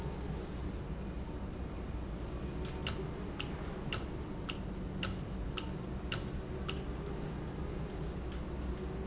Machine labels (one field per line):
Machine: valve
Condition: normal